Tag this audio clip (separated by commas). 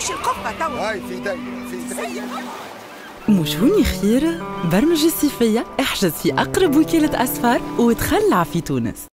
Music, Speech